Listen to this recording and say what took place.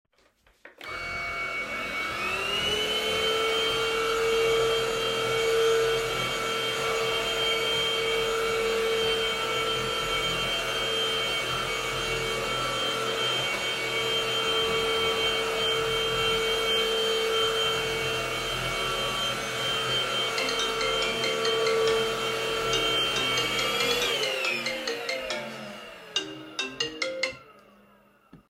I turned on my vacuum and started cleaning my room. Then my phone started ringing and I turned the vacuum off.